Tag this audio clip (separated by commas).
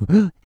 Respiratory sounds, Breathing